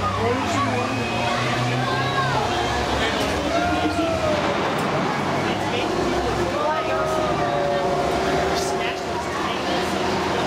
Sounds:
Bus, Vehicle, Speech

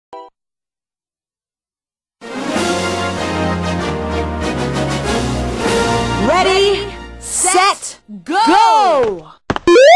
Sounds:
Speech, Music

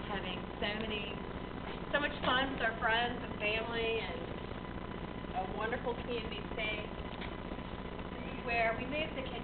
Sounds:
Speech

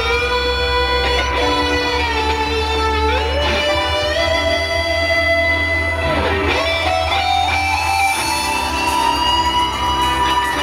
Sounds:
Musical instrument, Strum, Electric guitar, Plucked string instrument, Music, Guitar

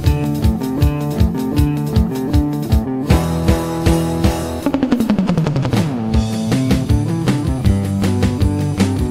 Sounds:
Guitar, Strum, Musical instrument, Music

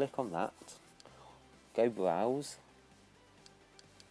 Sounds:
Speech

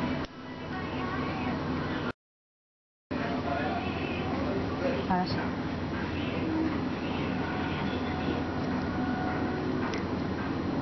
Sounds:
Music, Speech

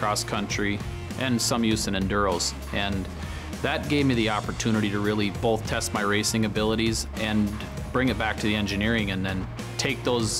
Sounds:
Speech, Music

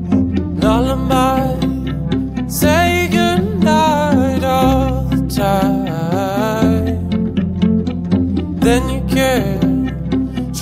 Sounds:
Music

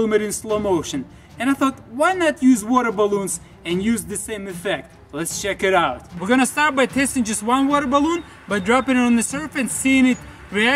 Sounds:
Speech

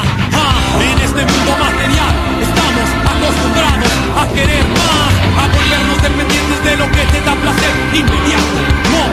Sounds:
Music

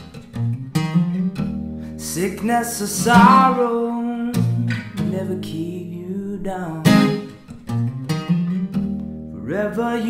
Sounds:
Music

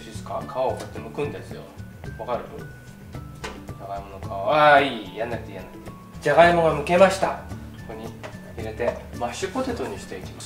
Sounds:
Music, Speech

